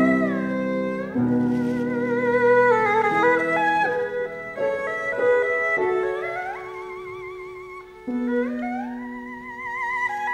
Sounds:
playing erhu

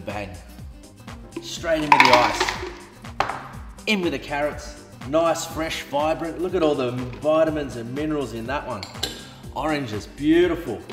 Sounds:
Speech, Music

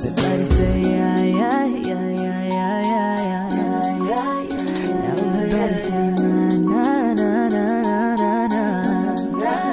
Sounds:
Music

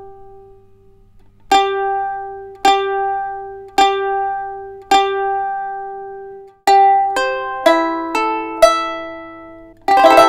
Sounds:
Music, Plucked string instrument, Musical instrument, Guitar

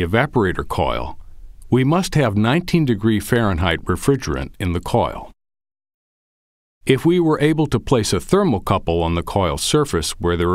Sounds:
Speech

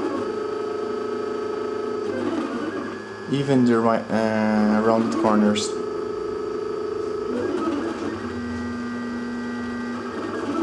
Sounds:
Printer, Speech

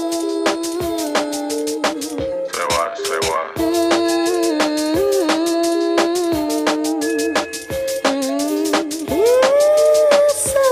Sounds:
Music

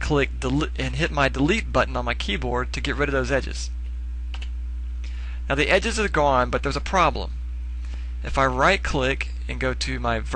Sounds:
Speech

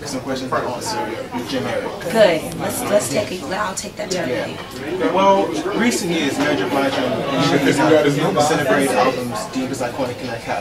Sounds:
Speech

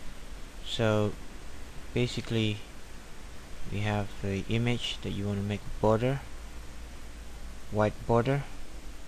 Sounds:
Speech

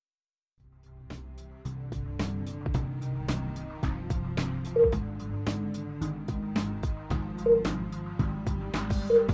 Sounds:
Music

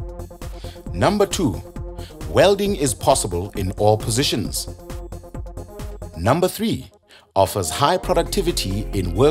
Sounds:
arc welding

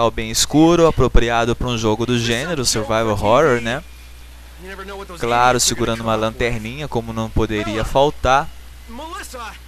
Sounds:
Speech

